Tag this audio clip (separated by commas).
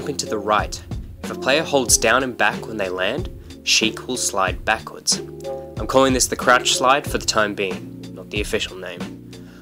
Music, Speech